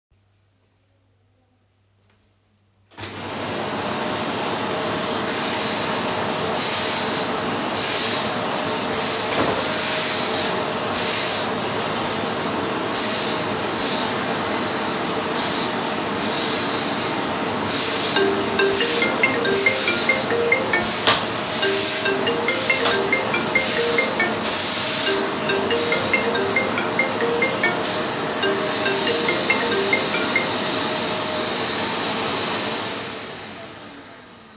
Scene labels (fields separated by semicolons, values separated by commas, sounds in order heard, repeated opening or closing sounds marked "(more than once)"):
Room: living room; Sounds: vacuum cleaner, phone ringing